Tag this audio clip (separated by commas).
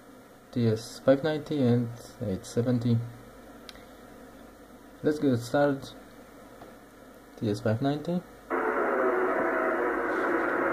Speech